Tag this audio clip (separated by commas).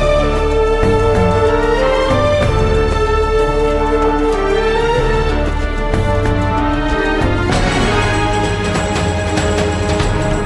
Dance music, Jazz, Music